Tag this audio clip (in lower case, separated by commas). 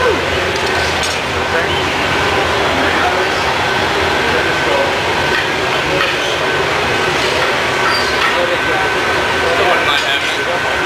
chink, speech